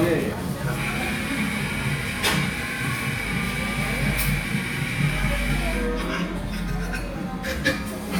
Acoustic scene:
cafe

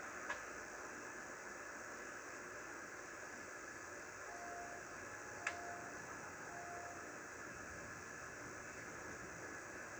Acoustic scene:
subway train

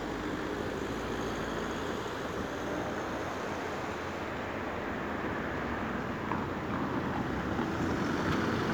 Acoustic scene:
street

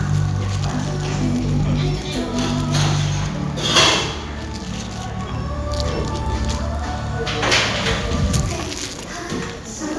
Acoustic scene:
cafe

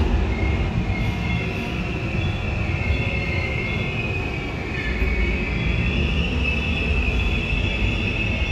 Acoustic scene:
subway train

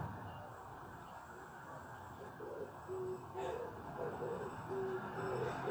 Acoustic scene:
residential area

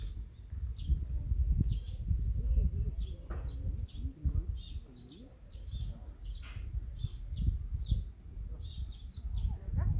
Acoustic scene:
park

